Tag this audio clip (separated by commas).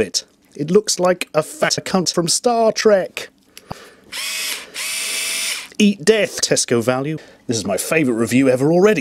Drill